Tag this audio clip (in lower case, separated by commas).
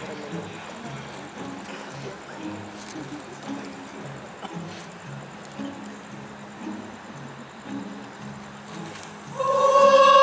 music